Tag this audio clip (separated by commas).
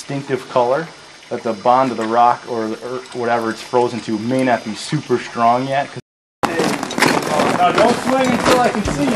Speech, outside, rural or natural, Music